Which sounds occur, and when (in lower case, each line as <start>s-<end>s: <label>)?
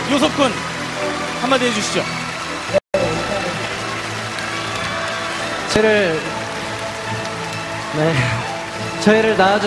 0.0s-0.6s: man speaking
0.0s-2.8s: applause
0.0s-2.8s: cheering
0.0s-2.8s: music
1.3s-2.2s: man speaking
2.9s-3.6s: man speaking
2.9s-9.6s: applause
2.9s-9.6s: cheering
2.9s-9.6s: music
5.7s-6.4s: man speaking
7.9s-8.5s: man speaking
9.0s-9.6s: man speaking